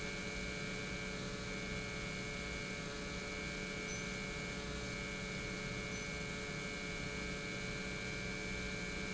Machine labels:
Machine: pump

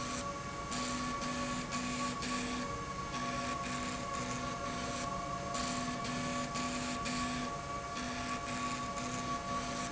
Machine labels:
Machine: slide rail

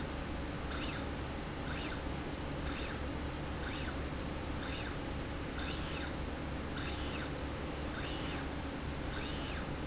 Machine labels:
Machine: slide rail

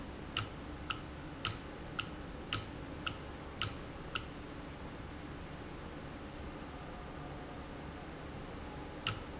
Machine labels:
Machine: valve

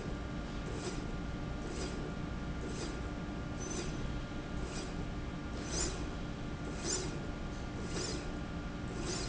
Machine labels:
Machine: slide rail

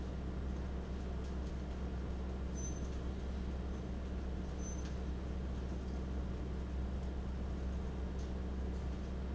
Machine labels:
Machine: fan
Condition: abnormal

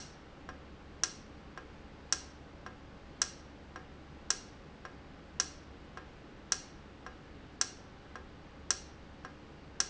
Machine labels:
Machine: valve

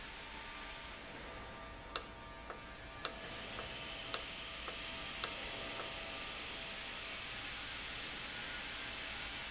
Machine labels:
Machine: valve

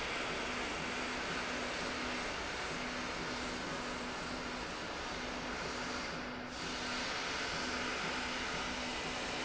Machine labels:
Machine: slide rail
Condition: normal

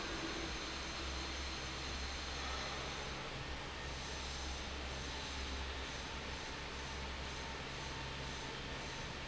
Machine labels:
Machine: fan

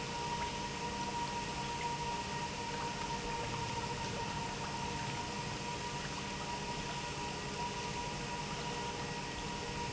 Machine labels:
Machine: pump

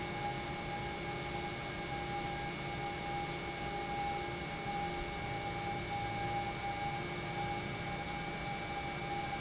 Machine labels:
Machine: pump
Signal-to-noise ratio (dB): -6 dB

